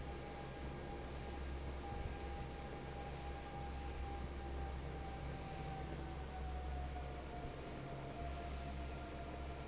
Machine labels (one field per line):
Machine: fan